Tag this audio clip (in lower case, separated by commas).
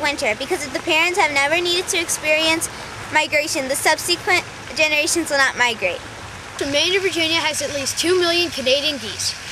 speech